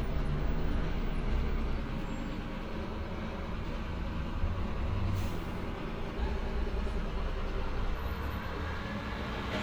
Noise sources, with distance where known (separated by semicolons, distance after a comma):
large-sounding engine, near